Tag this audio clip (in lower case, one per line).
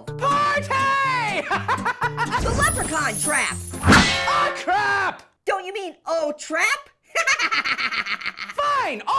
inside a small room
speech
music